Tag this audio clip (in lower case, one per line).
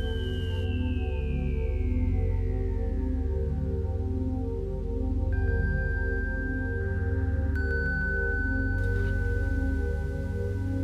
music